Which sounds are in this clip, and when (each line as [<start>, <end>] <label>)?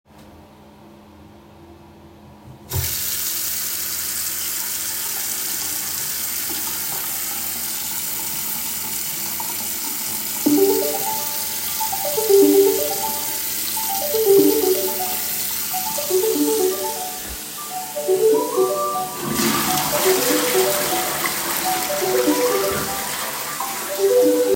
[2.65, 24.55] running water
[10.36, 24.55] phone ringing
[19.21, 24.55] toilet flushing